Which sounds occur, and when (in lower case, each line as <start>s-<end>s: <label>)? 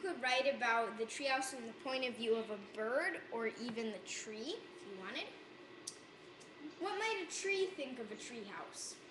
0.0s-9.1s: background noise
0.0s-3.9s: female speech
4.2s-5.3s: female speech
6.7s-8.7s: female speech